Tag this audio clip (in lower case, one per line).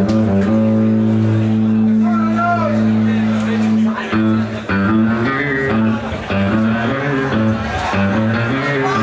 music
speech